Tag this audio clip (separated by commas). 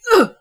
Human voice